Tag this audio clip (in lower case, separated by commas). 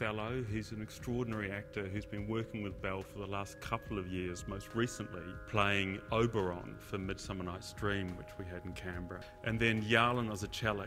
speech, music